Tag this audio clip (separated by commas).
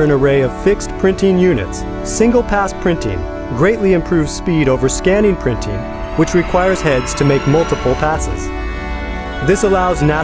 Music, Speech